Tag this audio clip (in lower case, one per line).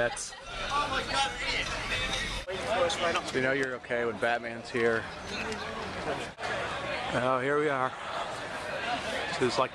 outside, urban or man-made
speech
music